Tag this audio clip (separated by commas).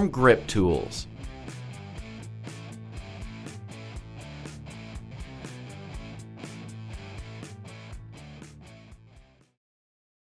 Speech, Music